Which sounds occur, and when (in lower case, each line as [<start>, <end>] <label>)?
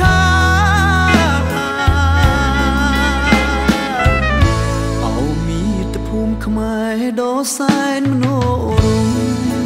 [0.00, 3.99] male singing
[0.00, 9.65] music
[4.92, 9.65] male singing